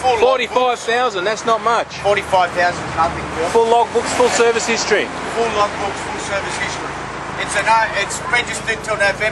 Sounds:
car passing by

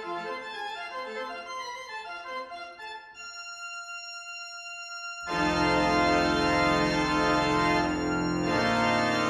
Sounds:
playing electronic organ, electronic organ, organ

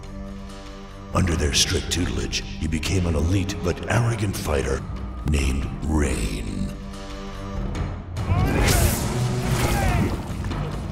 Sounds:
speech, music

